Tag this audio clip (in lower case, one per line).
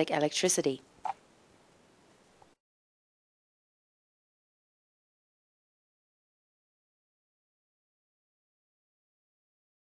speech